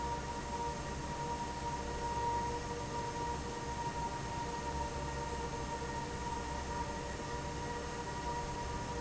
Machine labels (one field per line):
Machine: fan